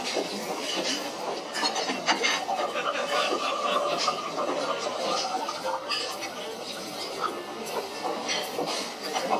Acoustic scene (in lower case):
restaurant